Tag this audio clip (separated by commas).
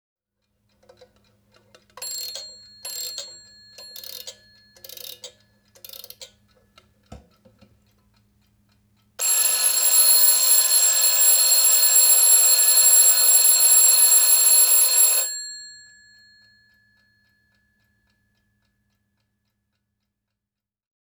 Clock, Alarm, Mechanisms